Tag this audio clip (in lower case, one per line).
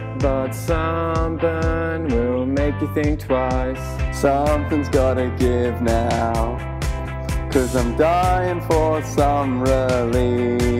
happy music
music